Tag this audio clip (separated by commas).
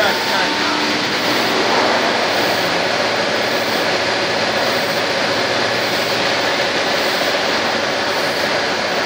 Pump (liquid)